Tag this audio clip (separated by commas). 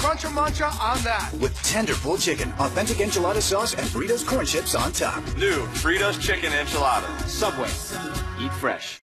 Speech, Music